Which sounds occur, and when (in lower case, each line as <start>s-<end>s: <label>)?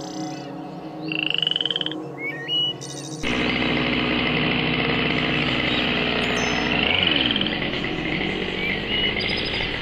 0.0s-3.2s: music
1.0s-1.9s: animal
3.2s-9.8s: chainsaw
6.6s-7.5s: cricket
9.1s-9.6s: bird